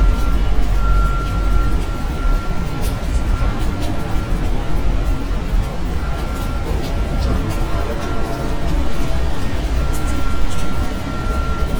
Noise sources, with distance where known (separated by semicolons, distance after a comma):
reverse beeper, far